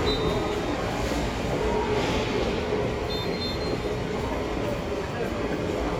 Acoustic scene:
subway station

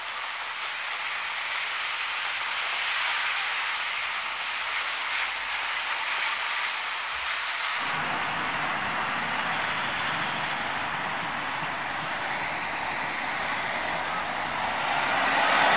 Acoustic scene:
street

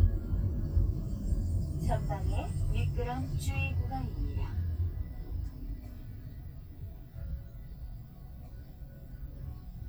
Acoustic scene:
car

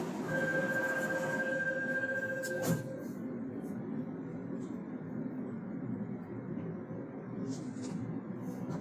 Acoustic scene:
subway train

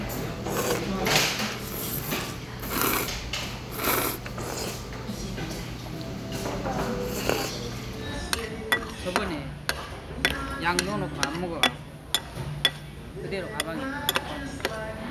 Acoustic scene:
restaurant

